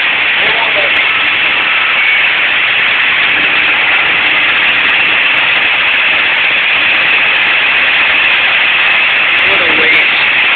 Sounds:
speech

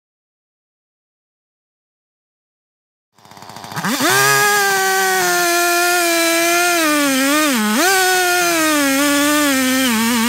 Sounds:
chainsawing trees

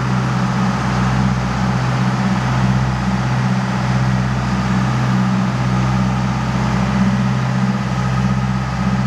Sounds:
vehicle
boat
speedboat

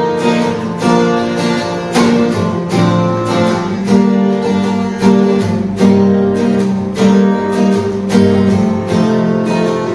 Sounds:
music

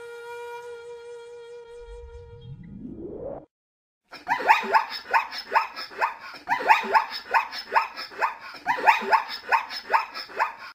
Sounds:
zebra braying

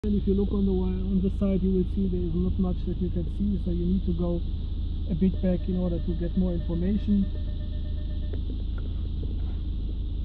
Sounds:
reversing beeps

